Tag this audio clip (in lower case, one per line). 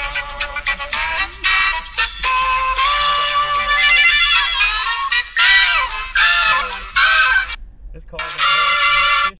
speech
music